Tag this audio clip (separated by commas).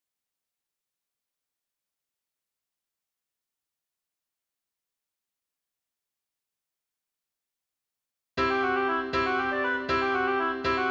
playing oboe